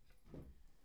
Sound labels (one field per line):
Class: furniture moving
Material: wooden